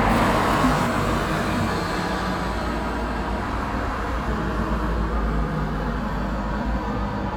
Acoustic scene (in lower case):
street